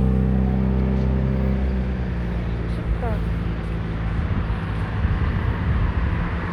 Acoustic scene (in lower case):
street